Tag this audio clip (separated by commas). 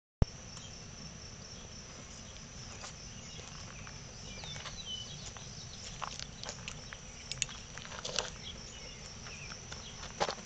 outside, rural or natural